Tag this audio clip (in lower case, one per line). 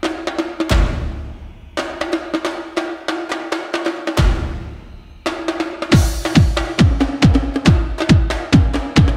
playing bongo